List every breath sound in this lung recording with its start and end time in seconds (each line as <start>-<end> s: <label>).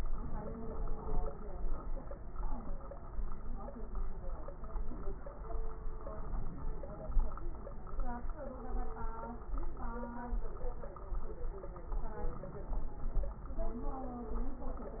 0.07-1.44 s: inhalation
0.07-1.44 s: crackles
6.13-7.18 s: inhalation
11.90-13.36 s: inhalation